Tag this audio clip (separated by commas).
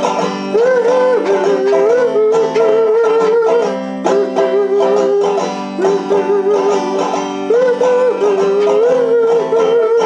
Plucked string instrument, playing banjo, Musical instrument, Banjo, Music